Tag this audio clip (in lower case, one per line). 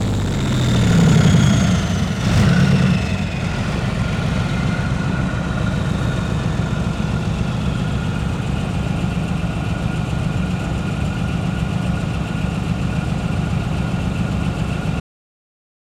engine
accelerating